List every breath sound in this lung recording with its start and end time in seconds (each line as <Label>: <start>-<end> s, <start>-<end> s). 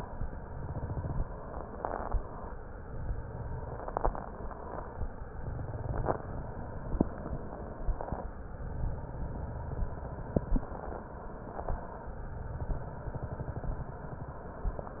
Inhalation: 1.63-2.61 s, 4.08-5.06 s, 6.41-7.58 s, 10.60-11.76 s, 14.70-15.00 s
Exhalation: 0.00-1.28 s, 2.75-3.84 s, 5.31-6.23 s, 8.40-10.47 s, 12.14-14.44 s
Crackles: 0.00-1.28 s, 2.75-3.84 s, 5.31-6.23 s, 8.40-10.47 s, 12.14-14.44 s